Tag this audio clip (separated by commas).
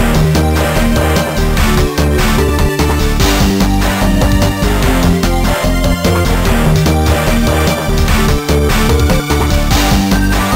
Video game music, Music